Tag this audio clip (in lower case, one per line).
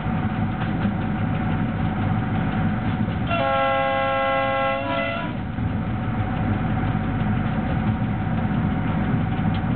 outside, rural or natural
train
train whistle
vehicle
rail transport